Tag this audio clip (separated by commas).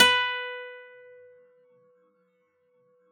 Music, Musical instrument, Acoustic guitar, Guitar, Plucked string instrument